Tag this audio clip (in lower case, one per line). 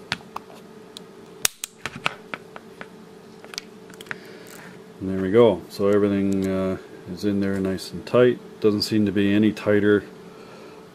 speech